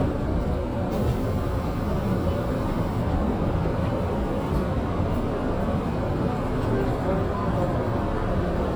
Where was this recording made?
on a subway train